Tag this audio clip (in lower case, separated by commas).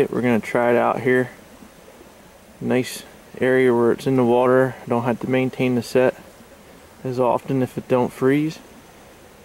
speech